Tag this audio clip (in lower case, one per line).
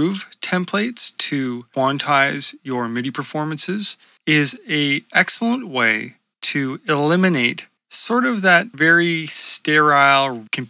speech